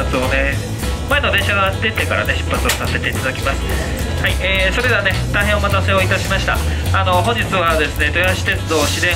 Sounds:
Music, Speech

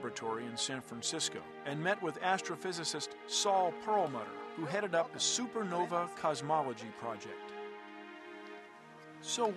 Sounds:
Music, Speech

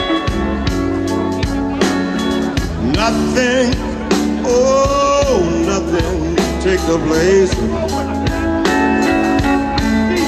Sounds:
Blues, Singing, Musical instrument, Speech, Music, Guitar

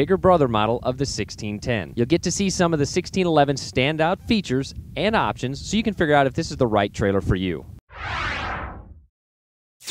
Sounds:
Speech

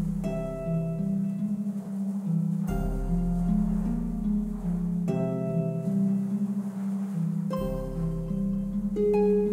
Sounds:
Music

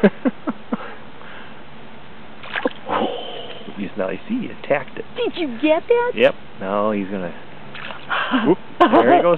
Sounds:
Speech

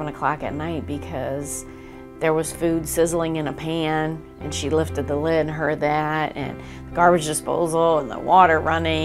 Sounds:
Speech, Music

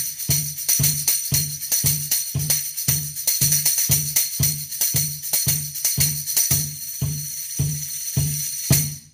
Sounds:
Tambourine, Music, Musical instrument

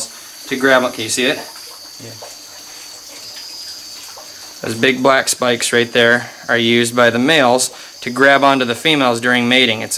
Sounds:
Speech

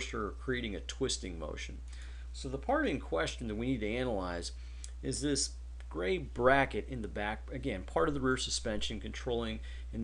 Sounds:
Speech

